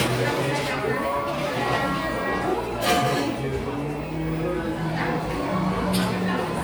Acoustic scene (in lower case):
crowded indoor space